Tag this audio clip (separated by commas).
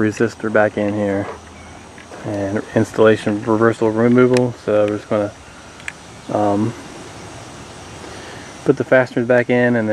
Speech